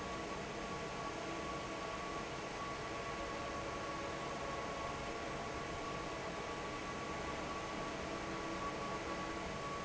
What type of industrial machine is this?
fan